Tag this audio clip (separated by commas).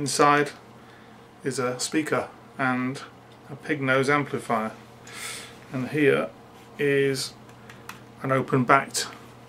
Speech